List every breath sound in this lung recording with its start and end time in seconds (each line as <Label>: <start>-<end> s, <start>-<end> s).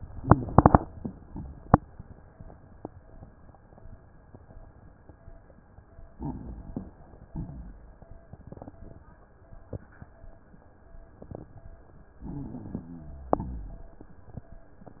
Inhalation: 6.17-7.00 s, 12.26-12.94 s
Exhalation: 7.30-8.14 s, 13.38-14.00 s
Rhonchi: 12.26-13.36 s, 13.38-14.00 s
Crackles: 6.17-7.00 s, 7.30-8.14 s